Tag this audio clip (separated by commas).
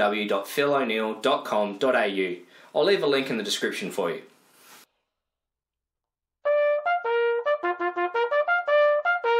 playing bugle